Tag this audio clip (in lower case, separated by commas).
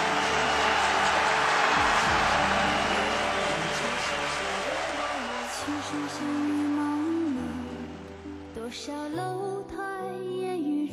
female singing, music